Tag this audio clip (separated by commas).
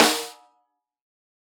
Music, Snare drum, Percussion, Musical instrument, Drum